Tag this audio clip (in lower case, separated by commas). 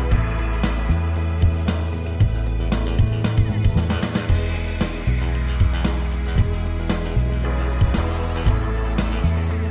music